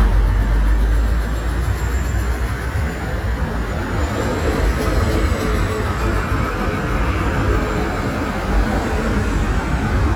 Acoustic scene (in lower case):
street